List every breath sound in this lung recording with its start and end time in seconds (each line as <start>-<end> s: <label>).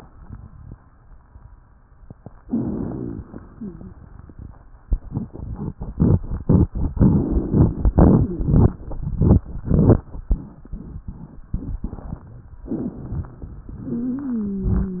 2.42-3.27 s: inhalation
2.49-3.26 s: rhonchi
3.26-4.62 s: exhalation
3.58-3.94 s: wheeze